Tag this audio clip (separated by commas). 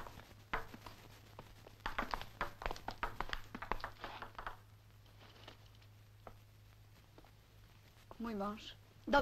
Speech